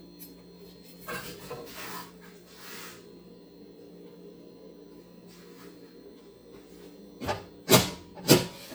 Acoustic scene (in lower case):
kitchen